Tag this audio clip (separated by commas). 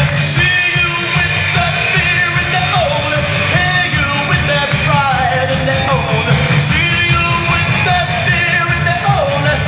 Pop music, Singing, inside a large room or hall, Music